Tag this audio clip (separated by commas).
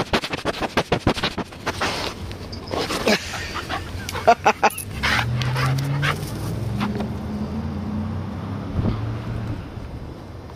outside, urban or man-made, Dog, pets, Animal